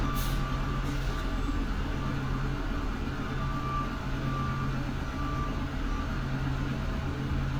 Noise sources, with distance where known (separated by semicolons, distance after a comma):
large-sounding engine, near; reverse beeper